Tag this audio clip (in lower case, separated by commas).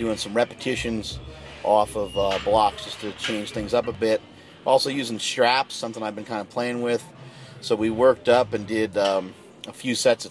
speech